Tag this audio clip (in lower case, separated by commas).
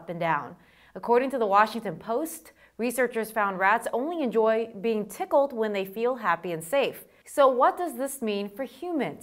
speech